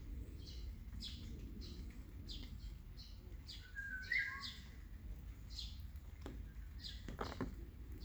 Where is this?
in a park